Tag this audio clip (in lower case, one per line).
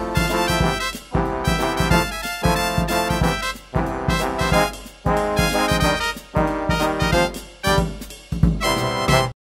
music